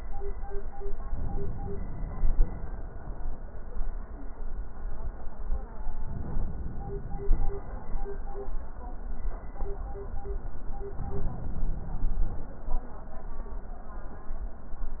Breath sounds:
Inhalation: 1.09-2.48 s, 5.97-7.36 s, 10.91-12.46 s
Wheeze: 7.36-7.67 s

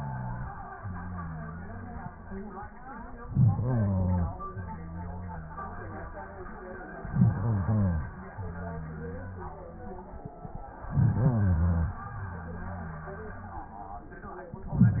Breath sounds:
Inhalation: 3.20-4.61 s, 7.03-8.20 s, 10.81-12.03 s
Exhalation: 4.57-6.53 s, 8.16-10.04 s, 12.01-14.18 s

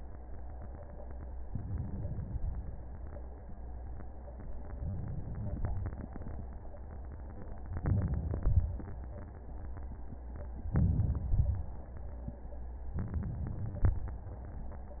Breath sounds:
Inhalation: 1.46-2.28 s, 4.80-5.60 s, 7.77-8.41 s, 10.74-11.34 s, 12.97-13.94 s
Exhalation: 2.27-2.87 s, 5.58-6.39 s, 8.45-8.83 s, 11.34-11.80 s, 13.94-15.00 s

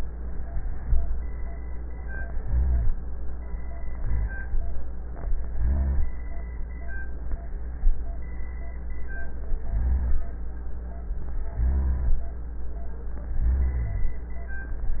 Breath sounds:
Inhalation: 2.26-2.94 s, 3.95-4.55 s, 5.48-6.17 s, 9.53-10.21 s, 11.57-12.26 s, 13.30-14.14 s
Rhonchi: 2.26-2.94 s, 3.95-4.55 s, 5.48-6.17 s, 9.53-10.21 s, 11.57-12.26 s, 13.30-14.14 s

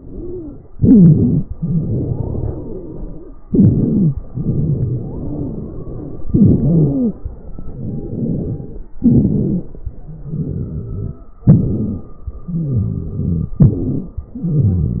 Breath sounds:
Inhalation: 0.77-1.41 s, 3.48-4.18 s, 6.32-7.14 s, 9.02-9.83 s, 11.46-12.28 s, 13.59-14.23 s
Exhalation: 0.00-0.65 s, 1.51-3.35 s, 4.32-6.24 s, 7.31-8.90 s, 10.11-11.26 s, 12.36-13.53 s, 14.38-15.00 s
Wheeze: 0.00-0.65 s, 0.77-1.41 s, 1.51-3.35 s, 3.48-4.18 s, 4.32-6.24 s, 6.32-7.14 s, 7.60-8.89 s, 9.02-9.83 s, 10.11-11.26 s, 11.46-12.28 s, 12.48-13.53 s, 13.59-14.23 s, 14.38-15.00 s

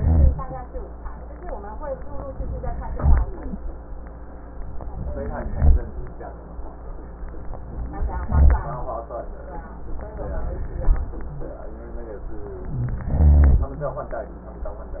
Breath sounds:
Inhalation: 2.37-2.96 s, 4.97-5.56 s, 7.76-8.31 s, 12.67-13.09 s
Exhalation: 2.98-3.57 s, 5.56-6.03 s, 8.31-8.98 s, 13.09-13.76 s
Wheeze: 5.16-5.56 s
Rhonchi: 0.00-0.59 s, 2.98-3.57 s, 5.56-5.88 s, 7.72-8.27 s, 8.31-8.98 s, 12.67-13.05 s, 13.09-13.76 s

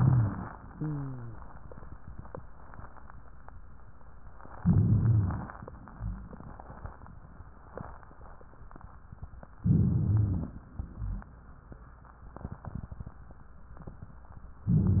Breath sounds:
Inhalation: 4.58-5.56 s, 9.68-10.66 s, 14.66-15.00 s
Wheeze: 0.68-1.41 s
Rhonchi: 4.56-5.54 s, 9.68-10.66 s, 14.66-15.00 s

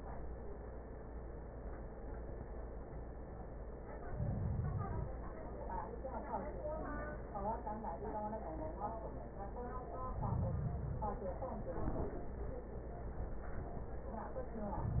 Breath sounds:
Inhalation: 4.01-5.17 s, 9.97-11.13 s

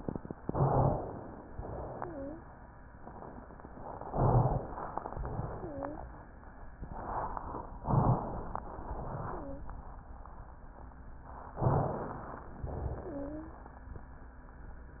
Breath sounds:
Inhalation: 0.38-1.46 s, 4.04-5.08 s, 7.84-8.62 s, 11.61-12.56 s
Exhalation: 1.46-2.39 s, 5.08-6.05 s, 8.62-9.70 s, 12.58-13.43 s
Wheeze: 1.98-2.39 s, 5.52-6.05 s, 9.36-9.70 s, 13.04-13.59 s

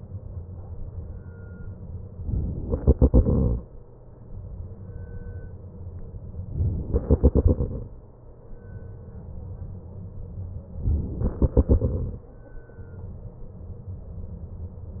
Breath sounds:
Inhalation: 2.25-2.65 s, 6.48-6.95 s, 10.76-11.27 s
Exhalation: 2.65-3.89 s, 6.95-8.07 s, 11.27-12.36 s

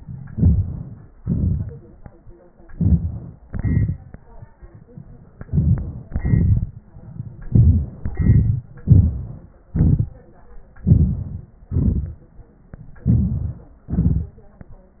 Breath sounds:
Inhalation: 0.32-1.16 s, 2.70-3.46 s, 5.42-6.07 s, 7.47-8.11 s, 8.87-9.70 s, 10.83-11.67 s, 13.02-13.88 s
Exhalation: 1.19-2.24 s, 3.48-4.60 s, 6.07-6.92 s, 8.10-8.69 s, 9.70-10.74 s, 11.68-12.53 s, 13.89-14.79 s

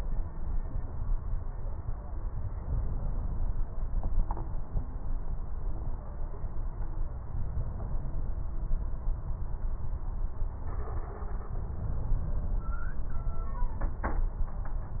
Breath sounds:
Inhalation: 11.56-12.82 s

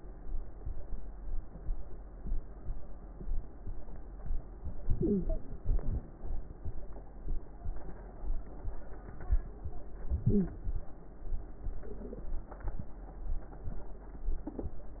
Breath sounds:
Inhalation: 4.76-5.57 s, 10.08-10.89 s
Exhalation: 5.63-6.44 s
Crackles: 4.76-5.57 s, 5.63-6.44 s, 10.08-10.89 s

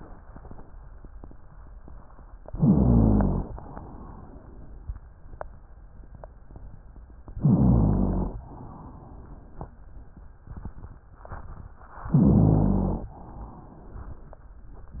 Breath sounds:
Inhalation: 2.43-3.50 s, 7.38-8.38 s, 12.09-13.14 s
Exhalation: 3.49-4.99 s, 8.40-9.84 s, 13.12-14.40 s
Rhonchi: 2.56-3.44 s, 7.39-8.33 s, 12.09-13.02 s

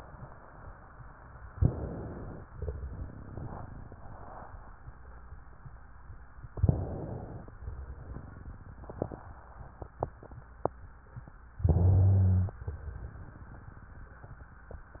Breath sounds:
Inhalation: 1.56-2.41 s, 6.55-7.51 s, 11.65-12.62 s
Exhalation: 2.50-4.50 s, 7.57-9.20 s, 12.68-14.50 s
Rhonchi: 11.65-12.62 s

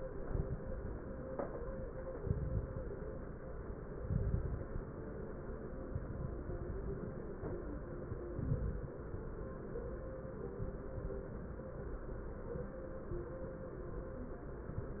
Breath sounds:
Inhalation: 2.15-2.79 s, 4.01-4.65 s, 8.32-8.97 s
Crackles: 2.15-2.79 s, 4.01-4.65 s, 8.32-8.97 s

